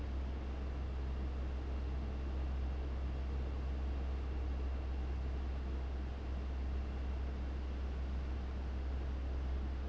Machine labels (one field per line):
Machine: fan